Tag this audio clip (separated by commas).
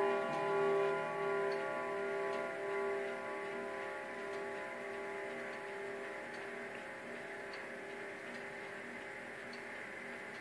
Bell